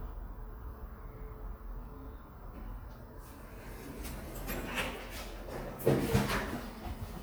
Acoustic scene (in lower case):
elevator